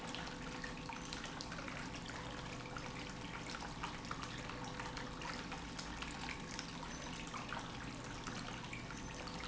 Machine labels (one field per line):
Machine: pump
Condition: normal